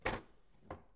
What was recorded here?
wooden drawer closing